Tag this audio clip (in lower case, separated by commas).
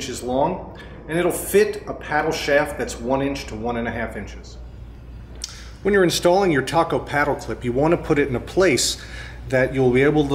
speech